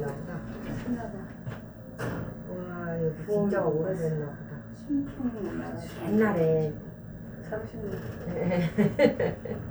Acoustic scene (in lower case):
elevator